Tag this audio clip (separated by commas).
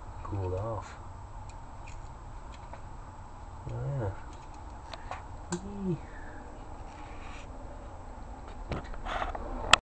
Speech